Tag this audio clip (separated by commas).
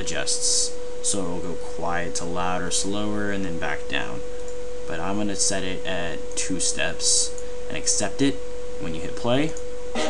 Speech, Music